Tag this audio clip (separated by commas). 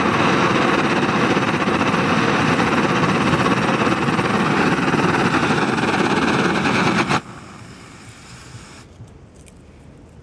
blowtorch igniting